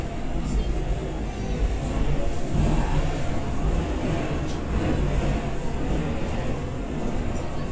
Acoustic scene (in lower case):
subway train